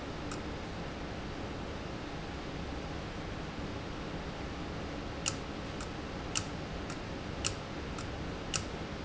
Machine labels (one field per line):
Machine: valve